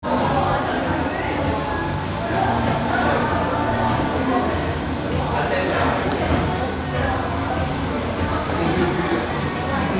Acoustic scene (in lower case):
crowded indoor space